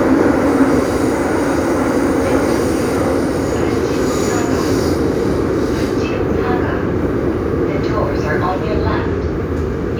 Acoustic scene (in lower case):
subway train